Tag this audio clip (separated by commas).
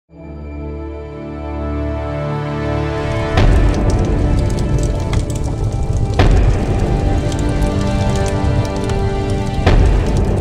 Music, Fire